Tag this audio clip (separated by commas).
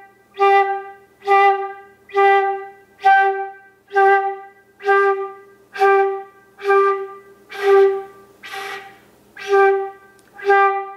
playing flute